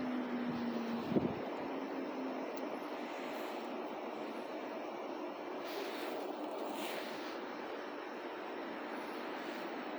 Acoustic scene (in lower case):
residential area